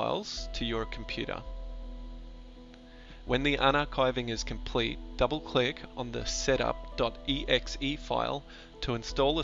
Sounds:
Music, Speech

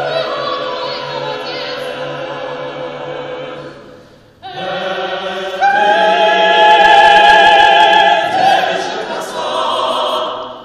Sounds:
Choir, Singing

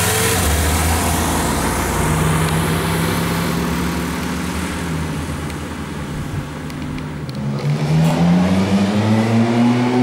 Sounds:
Car, Vehicle, Race car, outside, urban or man-made

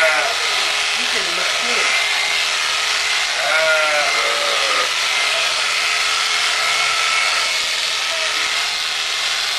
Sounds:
Sheep, Speech, Bleat

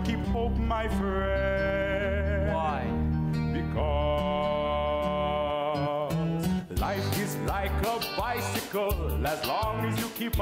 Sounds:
Speech, Music

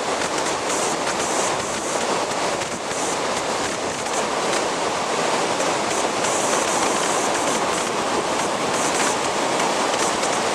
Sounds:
Waterfall

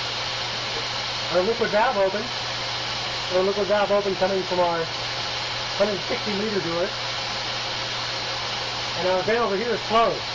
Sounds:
Speech

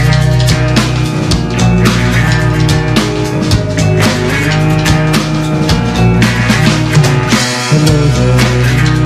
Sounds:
Music

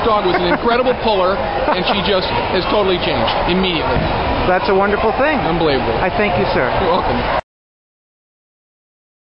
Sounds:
Speech

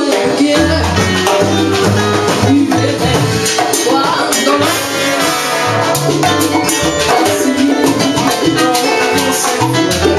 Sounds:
Exciting music, Music

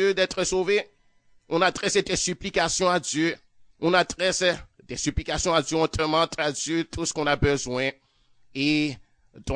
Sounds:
Speech

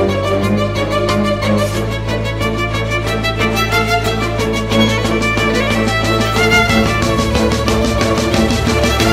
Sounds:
Music, Electronica, Electronic music

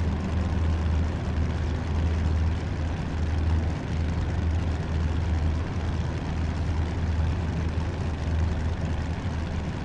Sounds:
Truck

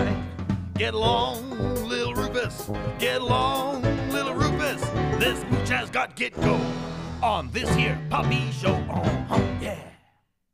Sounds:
Music, Speech

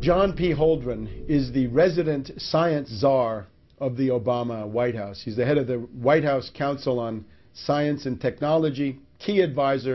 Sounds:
Speech, Music

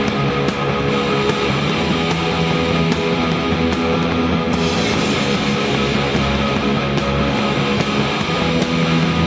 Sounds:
Music

